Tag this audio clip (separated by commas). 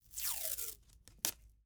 Packing tape, Domestic sounds